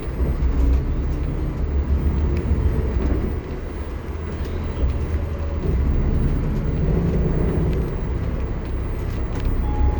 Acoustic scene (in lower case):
bus